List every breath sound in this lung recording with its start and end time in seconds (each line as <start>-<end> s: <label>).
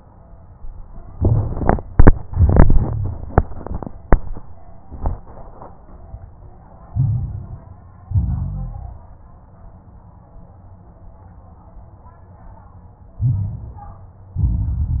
6.86-7.71 s: inhalation
6.86-7.71 s: crackles
8.02-9.06 s: exhalation
8.02-9.06 s: crackles
13.13-14.12 s: inhalation
13.13-14.12 s: crackles
14.29-15.00 s: exhalation
14.29-15.00 s: crackles